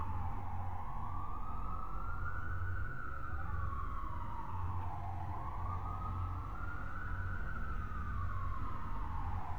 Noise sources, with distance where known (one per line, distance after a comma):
siren, far